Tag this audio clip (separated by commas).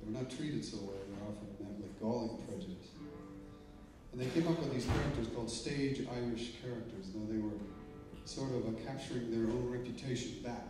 Music, Speech